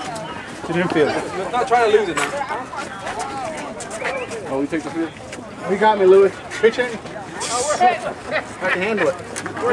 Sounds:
speech

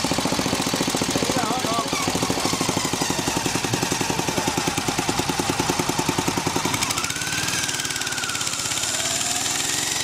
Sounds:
speech

